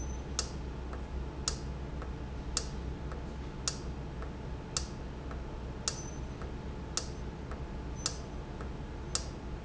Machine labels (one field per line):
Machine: valve